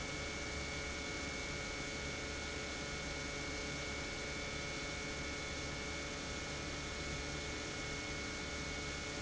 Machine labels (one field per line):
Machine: pump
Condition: normal